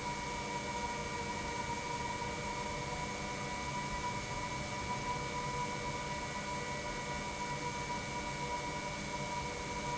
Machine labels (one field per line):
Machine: pump